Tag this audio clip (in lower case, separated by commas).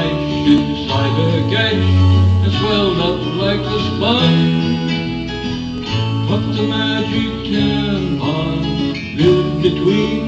music, guitar, country, singing, musical instrument